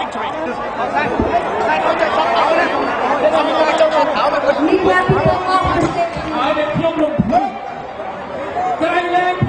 Crowded area noise and single person talking over a annoy